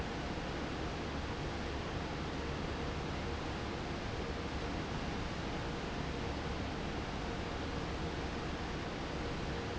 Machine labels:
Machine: fan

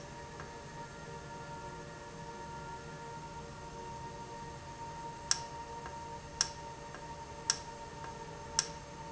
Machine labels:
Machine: valve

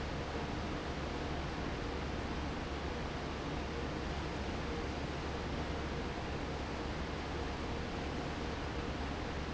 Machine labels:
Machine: fan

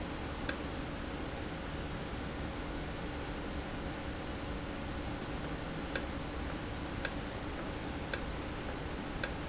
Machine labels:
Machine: valve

